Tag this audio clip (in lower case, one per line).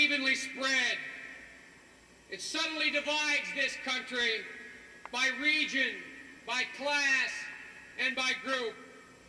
male speech
monologue
speech